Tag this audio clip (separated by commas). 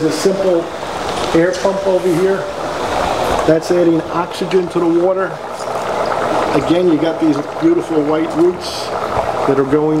Trickle